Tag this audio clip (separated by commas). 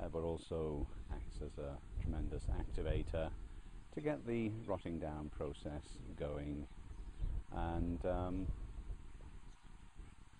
Speech